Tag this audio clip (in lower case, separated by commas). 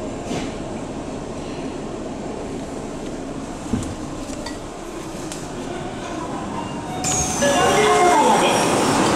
underground